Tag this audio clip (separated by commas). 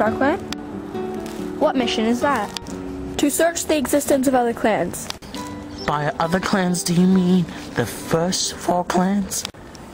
Speech, Music